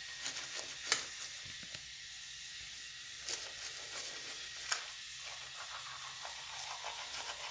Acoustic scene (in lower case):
restroom